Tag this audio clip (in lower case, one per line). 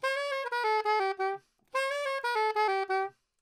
music
wind instrument
musical instrument